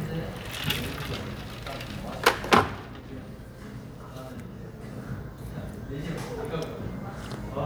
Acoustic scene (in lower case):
cafe